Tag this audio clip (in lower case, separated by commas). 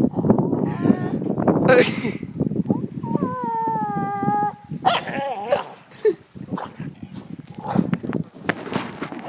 speech, bow-wow